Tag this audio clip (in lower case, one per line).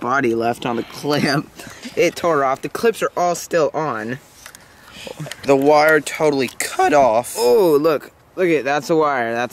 speech